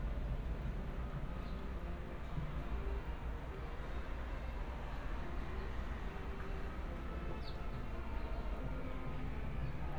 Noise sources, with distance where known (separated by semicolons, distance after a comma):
music from an unclear source, far